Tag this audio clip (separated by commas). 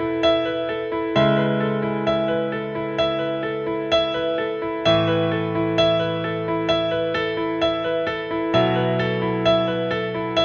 Tender music, New-age music, Music